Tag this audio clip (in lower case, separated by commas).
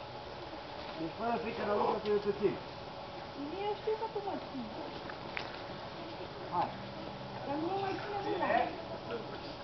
outside, rural or natural, speech